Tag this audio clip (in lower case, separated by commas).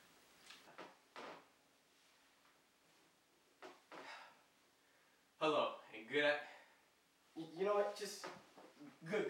speech